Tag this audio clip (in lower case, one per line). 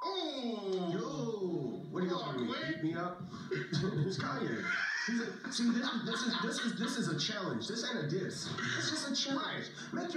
speech